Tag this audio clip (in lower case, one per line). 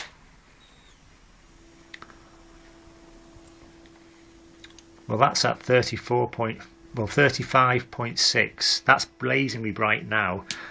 speech
inside a small room